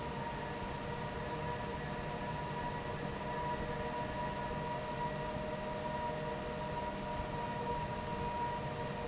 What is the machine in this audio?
fan